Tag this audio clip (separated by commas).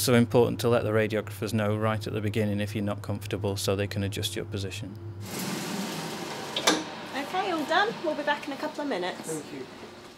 Speech